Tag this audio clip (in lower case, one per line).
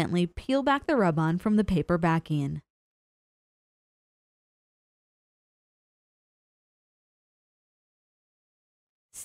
speech